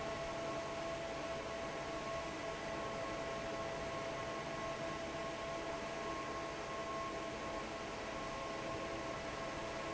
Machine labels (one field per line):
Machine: fan